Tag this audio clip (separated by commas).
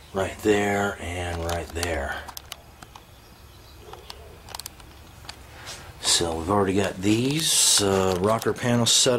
Speech